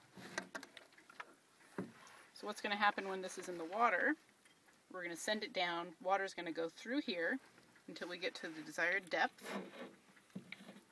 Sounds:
speech

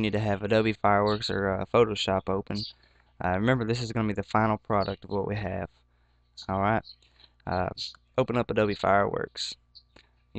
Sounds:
speech

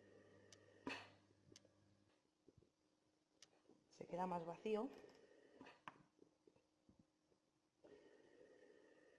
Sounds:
speech

